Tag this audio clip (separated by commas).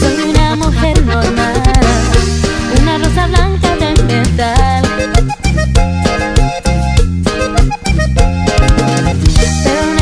Music, Pop music